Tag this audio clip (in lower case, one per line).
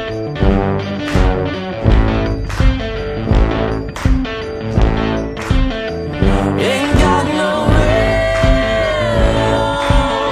independent music
music